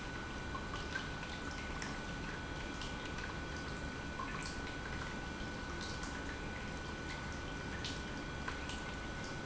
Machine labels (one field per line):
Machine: pump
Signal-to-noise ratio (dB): 0 dB